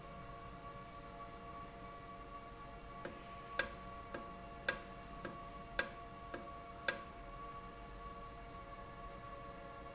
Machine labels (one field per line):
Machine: valve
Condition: normal